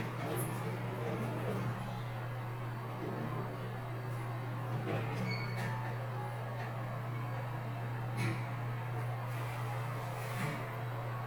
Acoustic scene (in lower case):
elevator